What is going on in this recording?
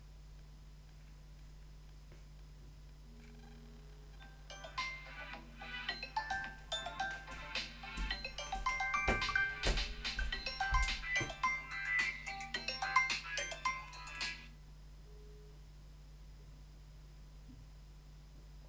Phone is Ringing then footsteps approach, and the ringing stops.